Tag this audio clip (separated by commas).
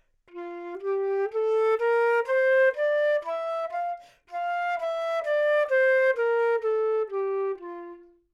Musical instrument, Wind instrument, Music